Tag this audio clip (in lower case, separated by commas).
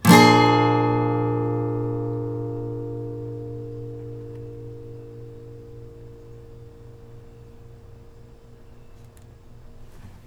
guitar, music, plucked string instrument, musical instrument